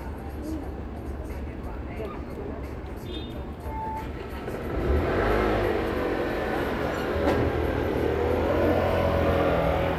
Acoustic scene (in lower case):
street